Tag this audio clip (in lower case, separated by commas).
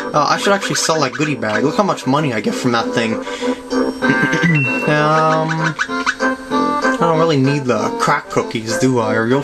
music, speech